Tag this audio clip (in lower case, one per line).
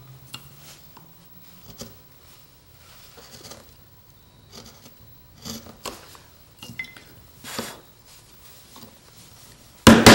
wood